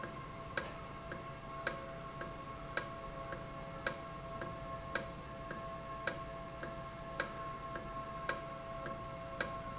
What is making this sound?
valve